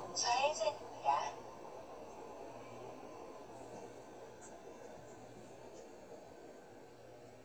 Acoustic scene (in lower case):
car